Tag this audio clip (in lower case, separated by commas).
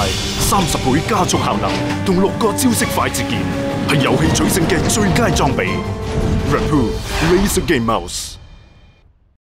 music, speech